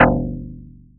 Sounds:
musical instrument, guitar, plucked string instrument, music

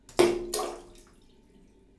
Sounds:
liquid, splatter

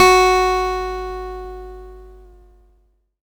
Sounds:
musical instrument, music, acoustic guitar, plucked string instrument, guitar

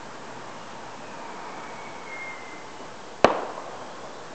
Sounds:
fireworks, explosion

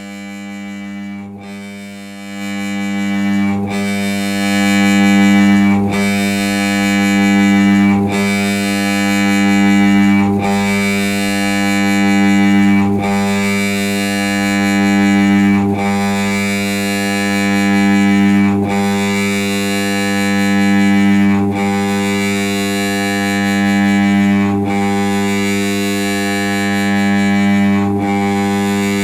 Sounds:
engine

